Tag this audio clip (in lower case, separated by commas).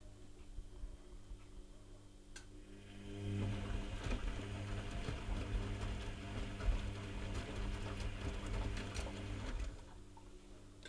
engine